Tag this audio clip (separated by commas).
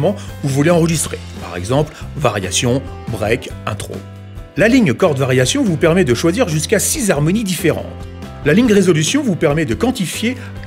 Music, Speech